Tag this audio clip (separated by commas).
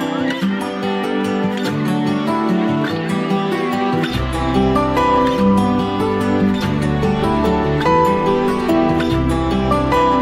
Background music, Music